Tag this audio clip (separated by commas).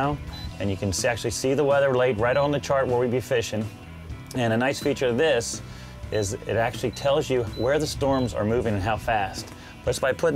Music, Speech